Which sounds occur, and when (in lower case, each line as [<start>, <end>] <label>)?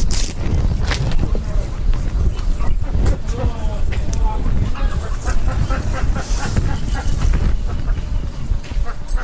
[0.00, 9.23] wind
[0.01, 9.23] background noise
[2.42, 2.73] fowl
[2.88, 3.46] fowl
[4.49, 7.53] fowl
[8.68, 8.96] fowl
[9.11, 9.23] fowl